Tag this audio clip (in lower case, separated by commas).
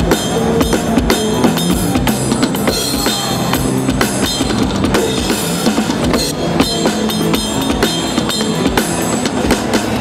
musical instrument, drum kit, music, drum